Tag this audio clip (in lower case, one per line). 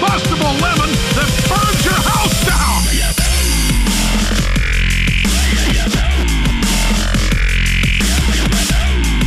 speech
music